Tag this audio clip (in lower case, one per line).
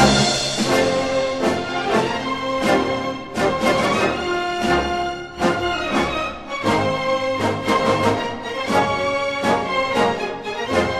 soundtrack music
video game music
music